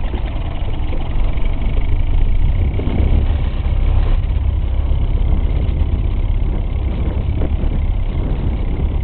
Sputtering engine noises